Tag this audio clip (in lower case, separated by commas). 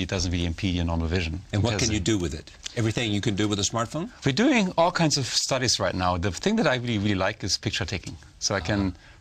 speech